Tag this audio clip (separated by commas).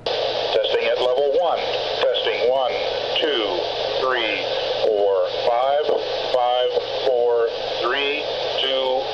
Speech